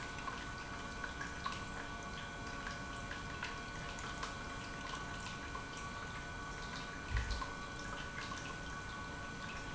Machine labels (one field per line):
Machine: pump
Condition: normal